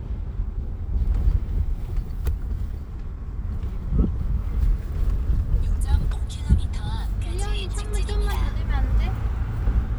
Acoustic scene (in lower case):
car